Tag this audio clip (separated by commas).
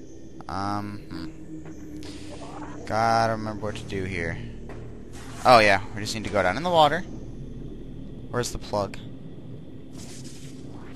Speech